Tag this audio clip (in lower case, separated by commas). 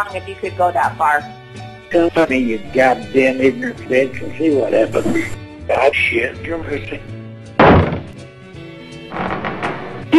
music, conversation, speech